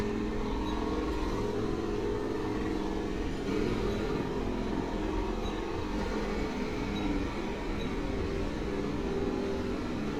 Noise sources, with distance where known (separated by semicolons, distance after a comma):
small-sounding engine